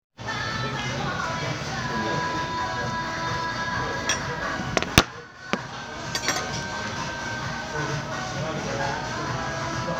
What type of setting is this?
crowded indoor space